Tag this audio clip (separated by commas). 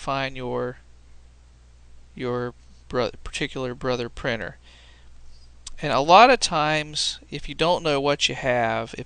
Speech